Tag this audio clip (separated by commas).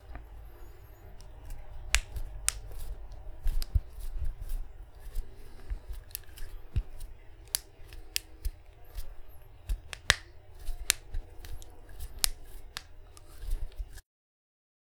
Hands